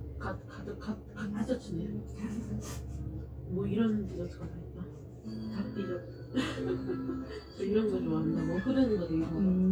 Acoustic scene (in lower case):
cafe